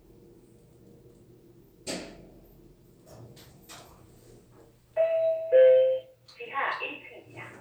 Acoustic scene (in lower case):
elevator